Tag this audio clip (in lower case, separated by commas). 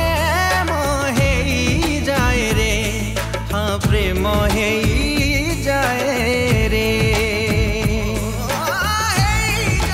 music, singing, music of bollywood